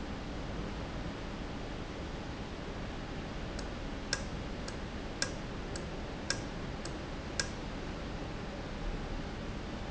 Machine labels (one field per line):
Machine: valve